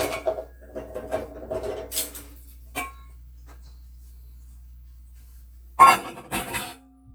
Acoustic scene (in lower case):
kitchen